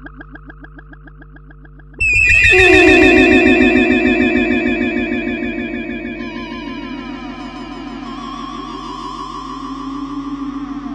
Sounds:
sound effect

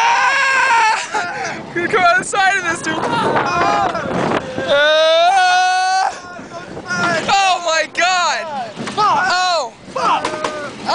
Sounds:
speech

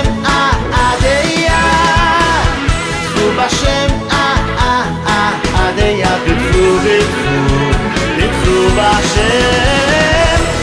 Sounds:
pop music
music

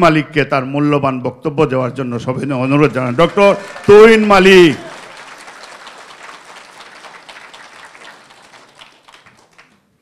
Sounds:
speech

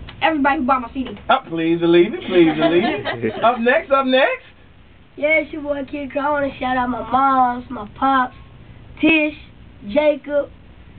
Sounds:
radio
speech

